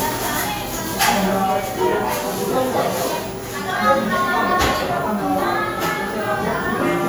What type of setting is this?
cafe